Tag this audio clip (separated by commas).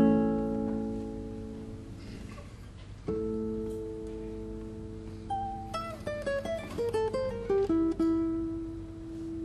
Guitar, Musical instrument, Plucked string instrument, Music